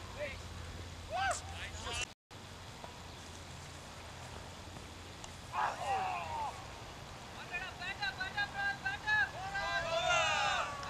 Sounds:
Speech

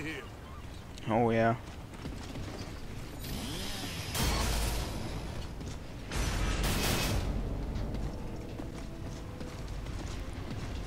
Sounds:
Music, Speech

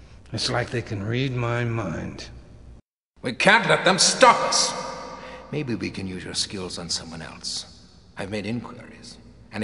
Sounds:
Speech

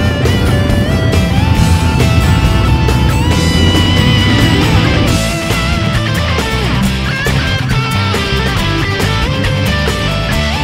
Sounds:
Music

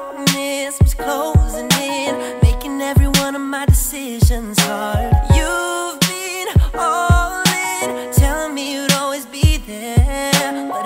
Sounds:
Music

